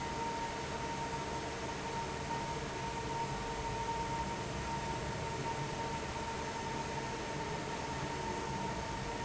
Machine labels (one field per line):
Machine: fan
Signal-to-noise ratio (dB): -6 dB